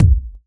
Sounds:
percussion, musical instrument, bass drum, music, drum

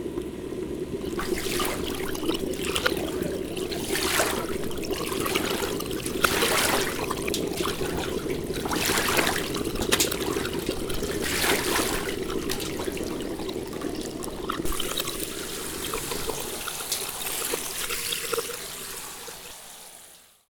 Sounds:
gurgling, water

